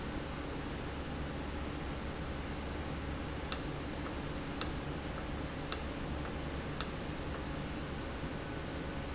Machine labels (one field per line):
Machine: valve